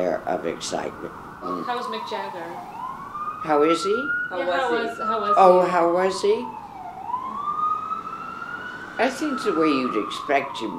An old woman and a younger woman chat in the foreground with another woman commenting once in the background while a siren goes by in the background